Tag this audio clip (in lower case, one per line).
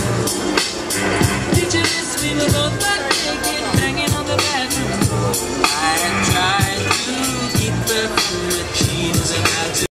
music
speech